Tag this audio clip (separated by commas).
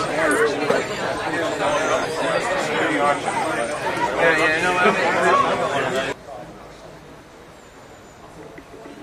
Speech